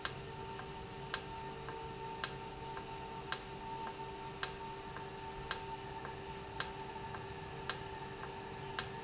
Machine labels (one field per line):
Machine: valve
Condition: normal